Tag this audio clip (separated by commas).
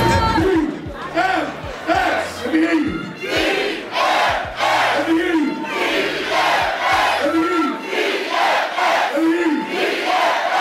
Speech